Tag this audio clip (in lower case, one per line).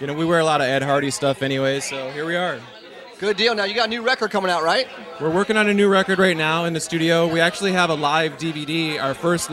speech